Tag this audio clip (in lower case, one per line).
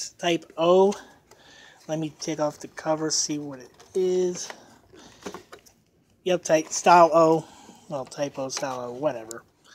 speech